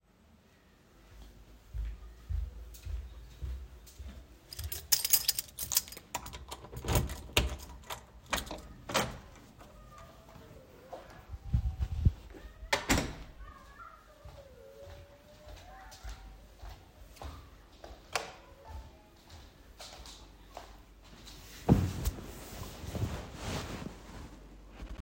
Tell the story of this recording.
I walked in the hallway while carrying keys. The keychain jingled before I opened and closed the door. After a few more steps, I switched the light on and then sat down on the couch.